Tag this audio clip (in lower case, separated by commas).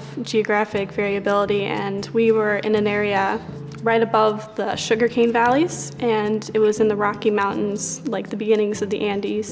music, speech